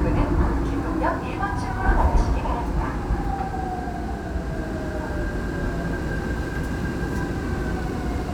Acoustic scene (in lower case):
subway train